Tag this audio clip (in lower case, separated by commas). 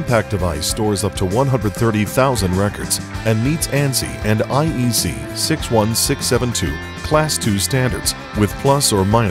speech, music